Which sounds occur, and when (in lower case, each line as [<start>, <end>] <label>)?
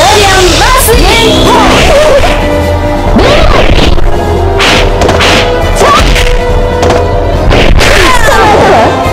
[0.00, 9.12] video game sound
[0.98, 9.12] music
[7.98, 9.02] shout